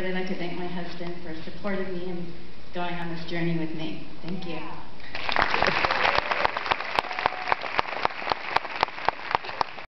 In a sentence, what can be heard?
A woman is giving a speech and crowd applauds